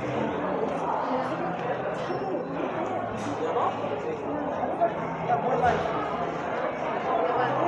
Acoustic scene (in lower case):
cafe